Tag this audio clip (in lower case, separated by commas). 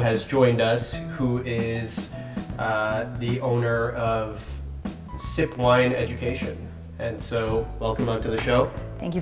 music, speech